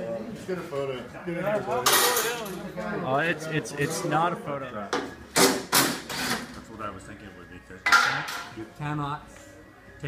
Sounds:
Speech, inside a large room or hall, Music

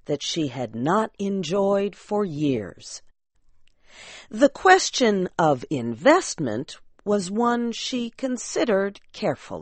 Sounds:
Narration, Speech

